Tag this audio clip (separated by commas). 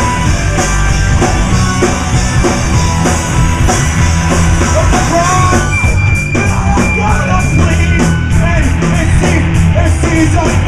Soundtrack music, Music